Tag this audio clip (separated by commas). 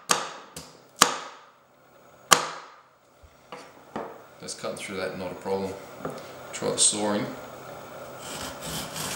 inside a small room, Speech